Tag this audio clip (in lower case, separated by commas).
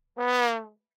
brass instrument, music, musical instrument